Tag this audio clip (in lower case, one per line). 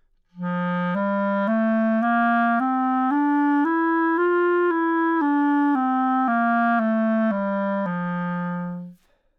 woodwind instrument
music
musical instrument